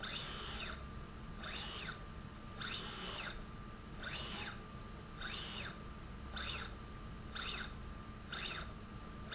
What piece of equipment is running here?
slide rail